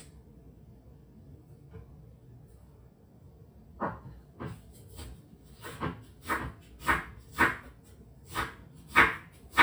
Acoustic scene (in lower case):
kitchen